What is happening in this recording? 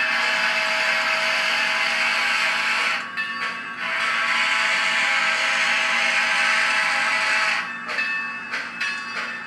Train blowing horn